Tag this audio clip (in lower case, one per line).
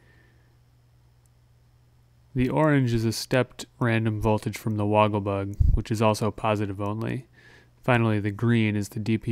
speech